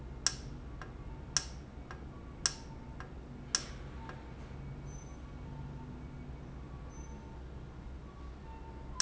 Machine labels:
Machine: valve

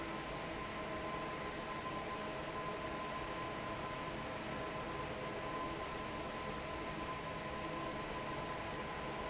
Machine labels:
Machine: fan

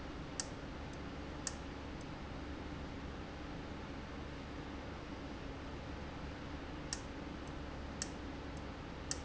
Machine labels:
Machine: valve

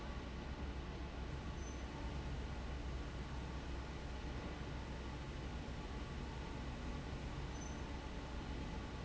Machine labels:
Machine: fan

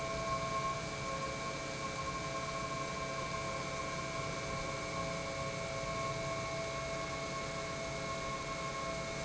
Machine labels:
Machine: pump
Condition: normal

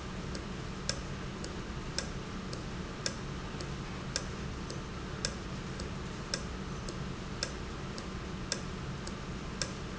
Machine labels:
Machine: valve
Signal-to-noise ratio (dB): -6 dB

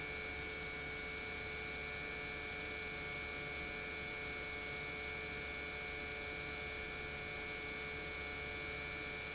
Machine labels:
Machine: pump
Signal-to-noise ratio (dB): 6 dB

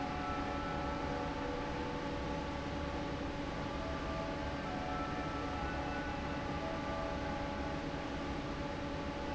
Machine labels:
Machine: fan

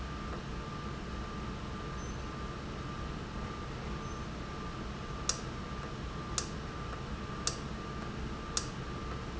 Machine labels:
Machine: valve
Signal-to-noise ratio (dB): -6 dB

